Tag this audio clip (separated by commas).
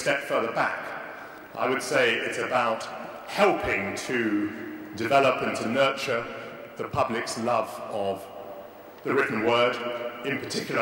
Male speech, Speech, Narration